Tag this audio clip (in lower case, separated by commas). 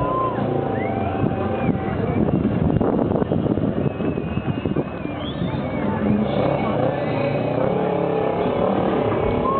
speech